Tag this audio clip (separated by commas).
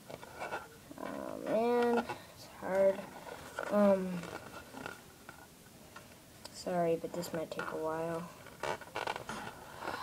kid speaking, Speech